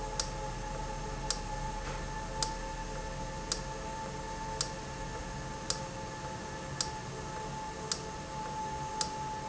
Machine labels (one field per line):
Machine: valve